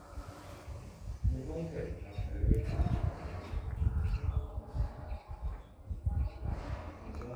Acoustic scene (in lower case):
elevator